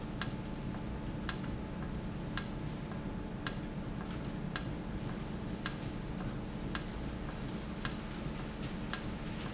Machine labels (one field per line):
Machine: valve